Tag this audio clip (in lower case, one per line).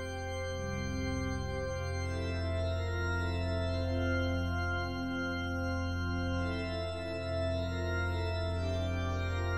music